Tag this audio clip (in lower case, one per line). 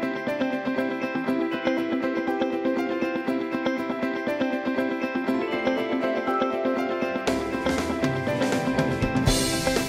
music